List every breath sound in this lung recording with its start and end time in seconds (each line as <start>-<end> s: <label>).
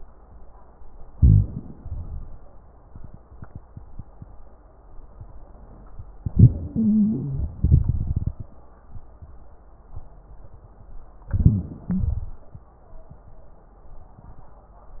1.06-1.74 s: crackles
1.08-1.76 s: inhalation
1.75-2.44 s: exhalation
6.24-7.55 s: inhalation
6.24-7.55 s: wheeze
6.24-7.55 s: crackles
7.57-8.54 s: exhalation
7.57-8.54 s: crackles
11.29-11.87 s: inhalation
11.29-11.87 s: crackles
11.92-12.59 s: exhalation
11.92-12.59 s: crackles